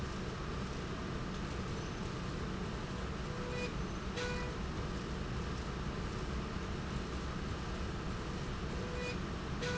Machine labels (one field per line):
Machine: slide rail